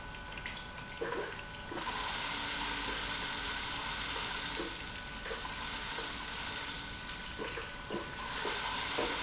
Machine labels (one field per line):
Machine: pump